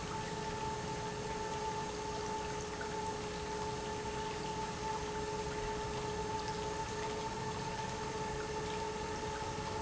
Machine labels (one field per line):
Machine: pump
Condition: normal